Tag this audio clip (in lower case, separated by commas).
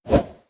whoosh